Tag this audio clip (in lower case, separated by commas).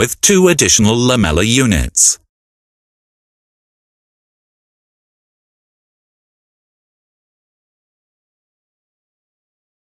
speech